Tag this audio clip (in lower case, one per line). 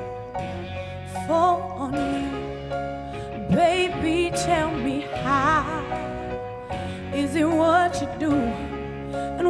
music